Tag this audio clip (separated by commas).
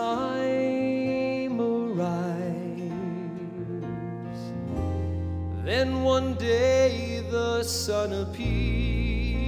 Music